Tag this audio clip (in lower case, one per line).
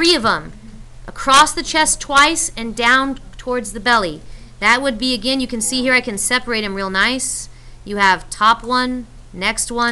speech